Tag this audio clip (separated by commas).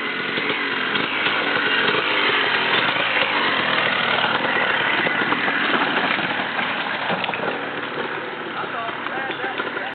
Speech